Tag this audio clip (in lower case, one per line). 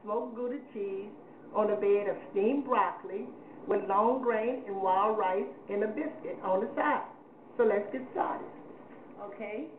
speech